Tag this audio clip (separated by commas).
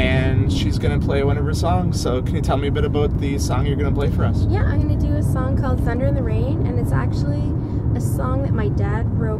Speech, Vehicle, Car, Motor vehicle (road)